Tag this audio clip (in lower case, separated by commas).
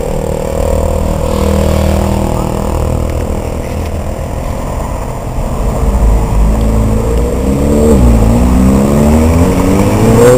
clatter